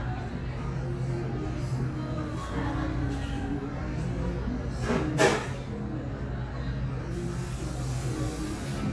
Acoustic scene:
cafe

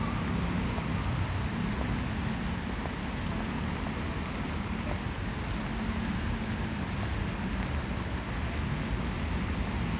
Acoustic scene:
street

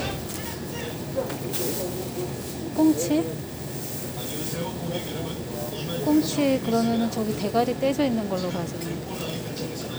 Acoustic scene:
crowded indoor space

